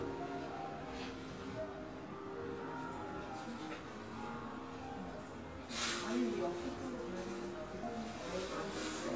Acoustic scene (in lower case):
crowded indoor space